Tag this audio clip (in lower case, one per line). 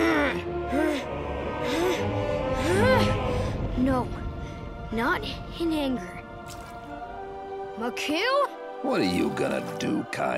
tornado roaring